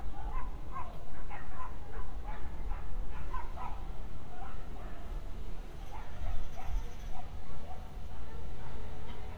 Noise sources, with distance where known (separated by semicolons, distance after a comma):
dog barking or whining, far